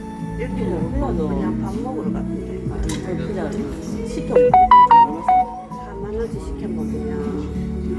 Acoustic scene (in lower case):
crowded indoor space